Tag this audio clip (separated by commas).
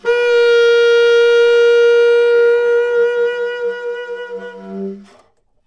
woodwind instrument, Musical instrument, Music